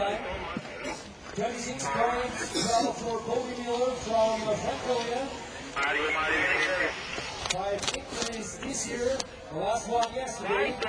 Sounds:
speech

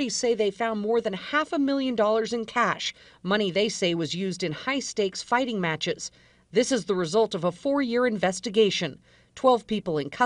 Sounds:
speech

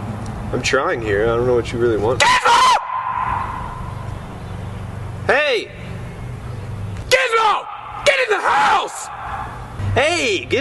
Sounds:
speech

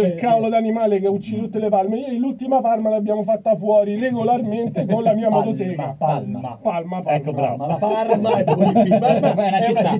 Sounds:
speech

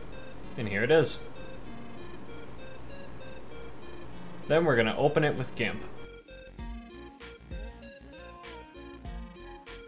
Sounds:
music
speech

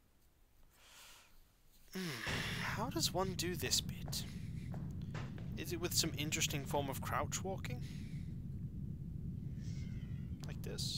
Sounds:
speech

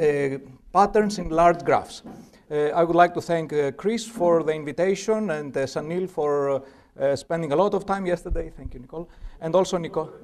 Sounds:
speech

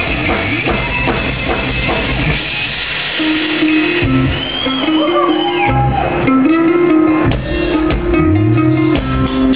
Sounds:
drum kit
musical instrument
guitar
music

